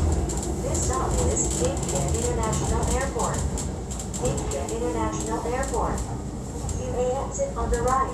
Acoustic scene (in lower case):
subway train